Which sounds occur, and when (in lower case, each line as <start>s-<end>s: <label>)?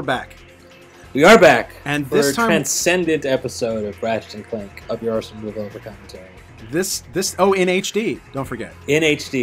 0.0s-9.4s: conversation
0.0s-9.4s: video game sound
0.0s-9.4s: music
0.0s-0.3s: male speech
1.1s-1.6s: male speech
1.8s-6.4s: male speech
6.6s-8.1s: male speech
8.3s-9.4s: male speech